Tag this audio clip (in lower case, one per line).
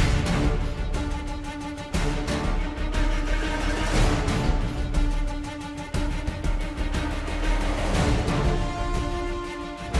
independent music
background music
music